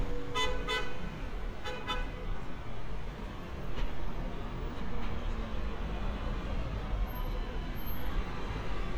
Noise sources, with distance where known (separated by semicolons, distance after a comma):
car horn, near